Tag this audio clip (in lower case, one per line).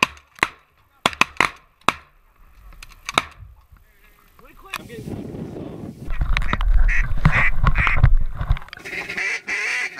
honk
goose
fowl